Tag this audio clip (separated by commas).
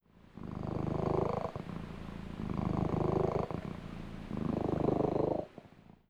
Purr, Animal, Domestic animals, Cat